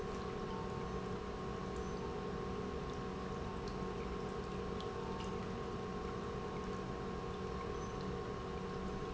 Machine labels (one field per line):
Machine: pump